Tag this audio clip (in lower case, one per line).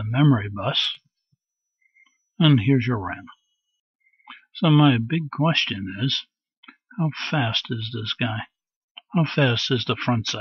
speech